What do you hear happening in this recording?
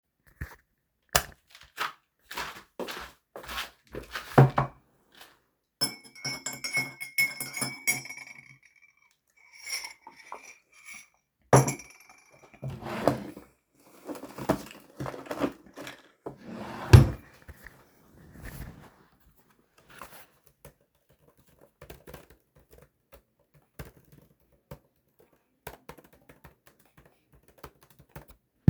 I went to the living room, turned on the light. Then I placed my tea on the table, stirred it, and opened a drawer to getmy headphones. Finally, I started typing on my laptop.